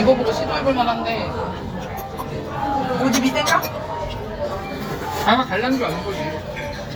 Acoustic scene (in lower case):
crowded indoor space